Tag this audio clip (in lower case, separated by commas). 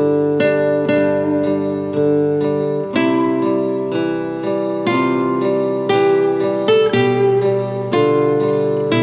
musical instrument, strum, acoustic guitar, playing acoustic guitar, plucked string instrument, music, guitar